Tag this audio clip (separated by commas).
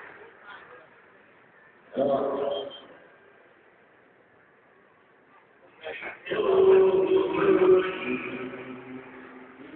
Walk, Speech